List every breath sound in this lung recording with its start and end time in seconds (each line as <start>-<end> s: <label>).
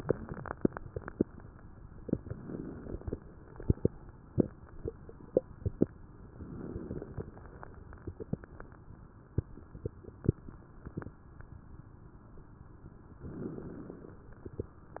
2.28-3.15 s: inhalation
2.28-3.15 s: crackles
6.39-7.27 s: inhalation
6.39-7.27 s: crackles
13.28-14.16 s: inhalation
13.28-14.16 s: crackles